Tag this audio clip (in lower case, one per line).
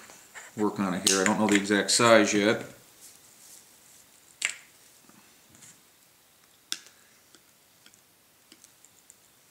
inside a small room
speech